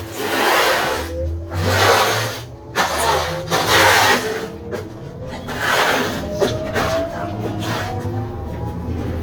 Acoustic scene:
bus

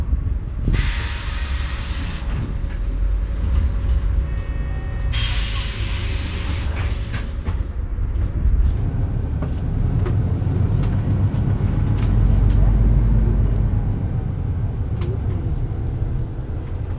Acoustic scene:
bus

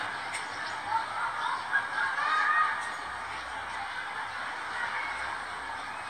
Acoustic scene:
residential area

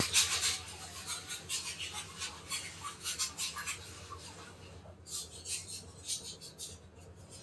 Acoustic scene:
kitchen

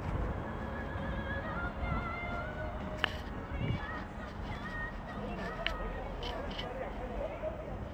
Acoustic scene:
residential area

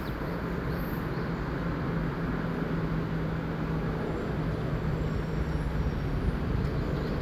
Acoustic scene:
street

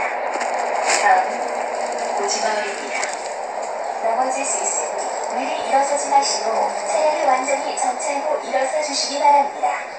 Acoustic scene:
bus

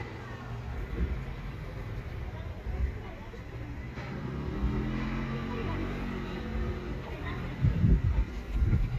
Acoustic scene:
residential area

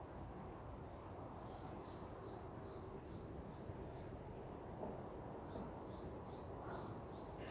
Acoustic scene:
park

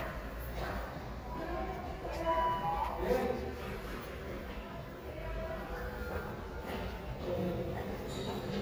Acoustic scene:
elevator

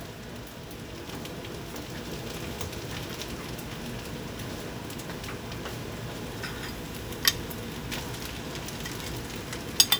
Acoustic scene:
kitchen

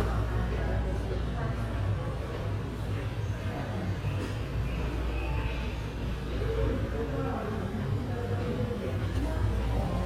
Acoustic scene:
subway station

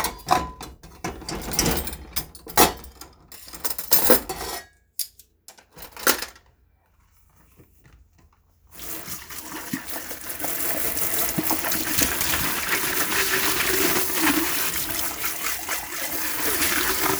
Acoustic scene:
kitchen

